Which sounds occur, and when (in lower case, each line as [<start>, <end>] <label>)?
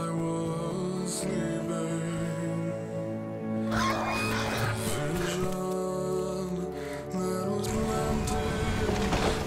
[0.01, 9.45] music
[0.04, 3.32] male singing
[3.71, 5.00] animal
[4.71, 6.55] male singing
[5.19, 5.38] animal
[7.11, 9.45] male singing
[7.61, 9.45] sound effect